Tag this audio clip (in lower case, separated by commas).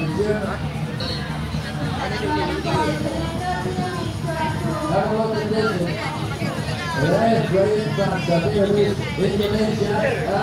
speech